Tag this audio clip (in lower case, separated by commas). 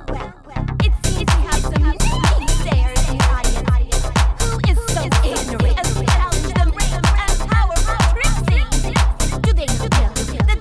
music, electronic music, techno